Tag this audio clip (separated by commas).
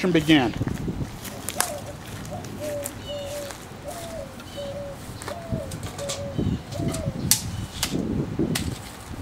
Speech